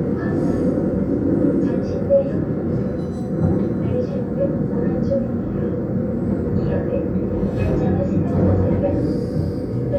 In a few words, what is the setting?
subway train